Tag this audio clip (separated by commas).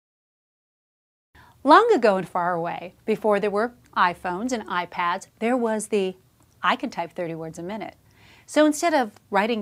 Speech